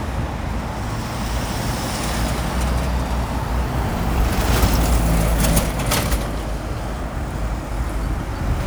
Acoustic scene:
street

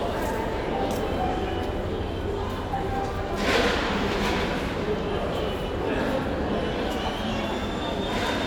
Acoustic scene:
crowded indoor space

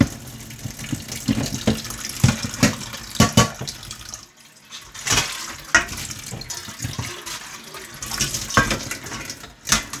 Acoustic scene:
kitchen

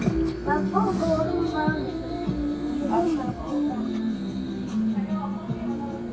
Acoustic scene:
restaurant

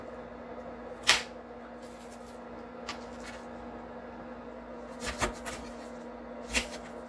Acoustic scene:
kitchen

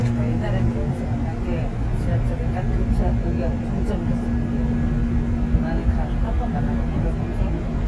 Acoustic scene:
subway train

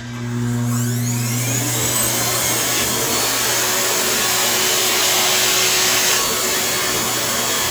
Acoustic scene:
restroom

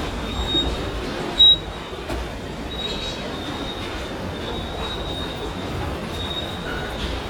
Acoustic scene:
subway station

